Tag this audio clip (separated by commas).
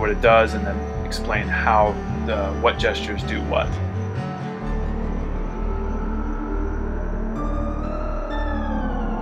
Speech, Music